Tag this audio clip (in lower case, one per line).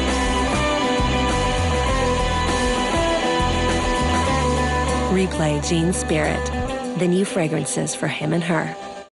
music
speech